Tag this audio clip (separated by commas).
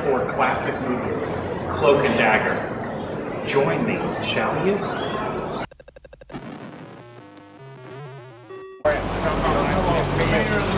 Speech